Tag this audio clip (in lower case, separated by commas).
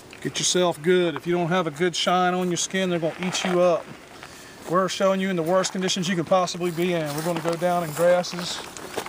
speech